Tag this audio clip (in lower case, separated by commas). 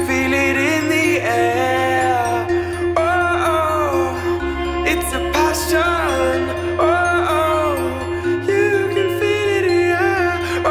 music